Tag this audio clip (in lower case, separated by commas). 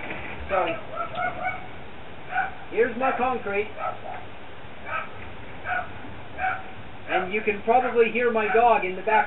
speech